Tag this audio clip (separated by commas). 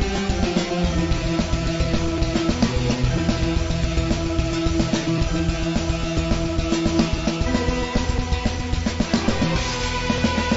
Music